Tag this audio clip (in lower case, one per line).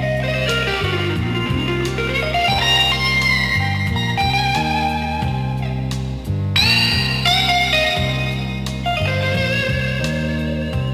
inside a large room or hall
blues
music